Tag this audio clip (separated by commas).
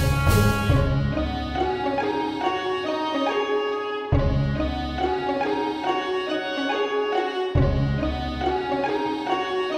Music, Musical instrument, Background music